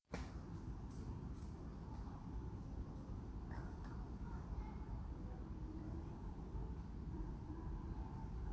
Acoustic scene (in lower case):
residential area